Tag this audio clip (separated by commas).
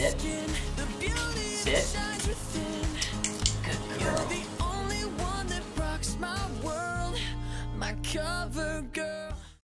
Music, Speech